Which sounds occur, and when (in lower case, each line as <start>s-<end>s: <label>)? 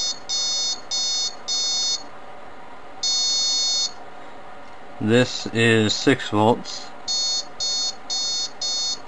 0.0s-2.1s: buzzer
0.0s-9.0s: mechanisms
2.9s-4.0s: buzzer
4.6s-4.8s: clicking
5.0s-6.9s: man speaking
7.0s-9.0s: buzzer